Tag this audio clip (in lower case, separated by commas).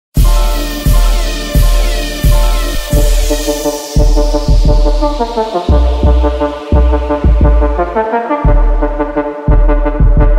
brass instrument